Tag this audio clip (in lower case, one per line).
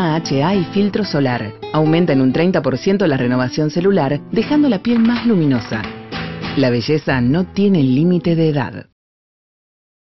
speech
music